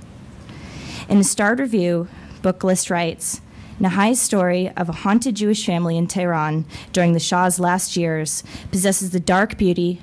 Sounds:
speech

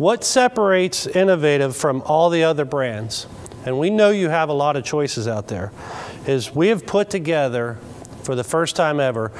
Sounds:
speech

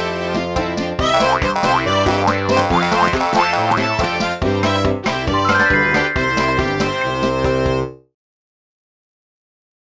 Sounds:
music

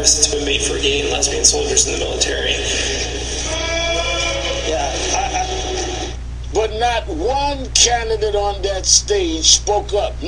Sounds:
speech

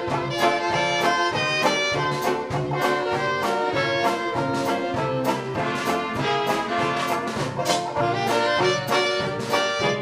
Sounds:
orchestra
jazz
music

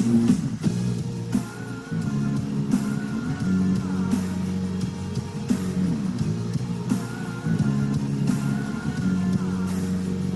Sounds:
music

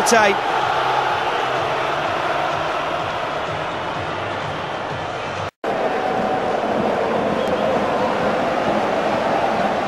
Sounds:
music
speech

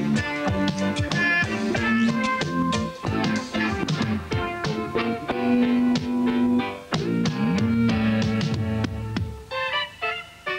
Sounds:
music

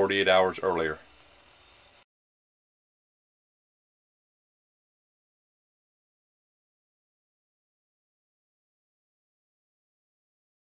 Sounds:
speech

